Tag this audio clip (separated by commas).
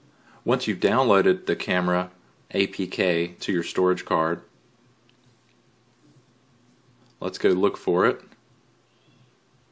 Speech